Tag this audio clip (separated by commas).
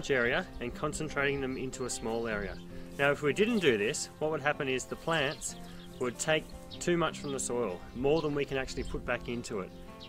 Speech, Music